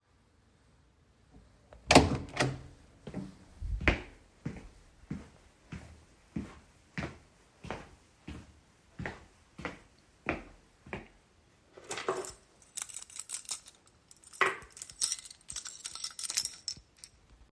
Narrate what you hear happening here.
I opened the door,walked across the hallway and took the keys from the table.